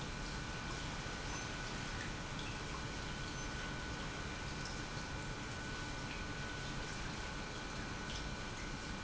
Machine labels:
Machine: pump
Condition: normal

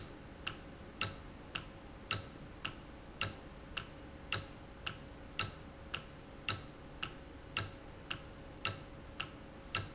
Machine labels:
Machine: valve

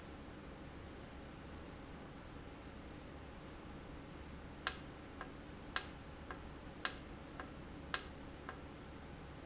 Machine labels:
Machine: valve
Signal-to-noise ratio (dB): 6 dB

